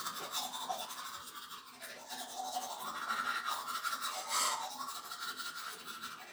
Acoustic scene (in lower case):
restroom